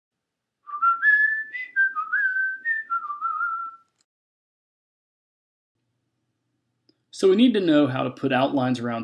A person whistling